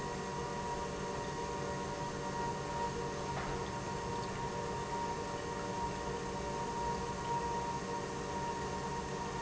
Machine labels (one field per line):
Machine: pump